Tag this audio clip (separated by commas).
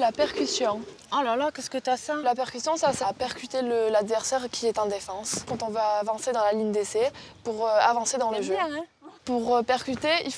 Speech